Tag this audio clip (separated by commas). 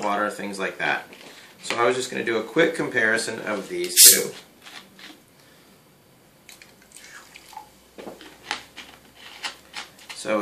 Water